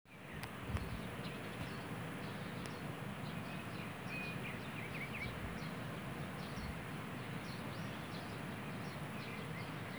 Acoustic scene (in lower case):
park